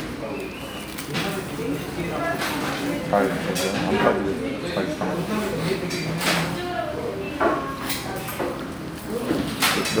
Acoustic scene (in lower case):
crowded indoor space